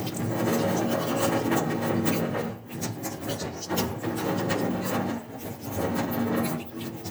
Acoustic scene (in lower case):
restroom